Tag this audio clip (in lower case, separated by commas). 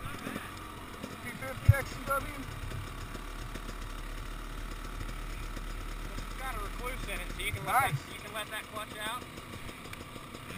speech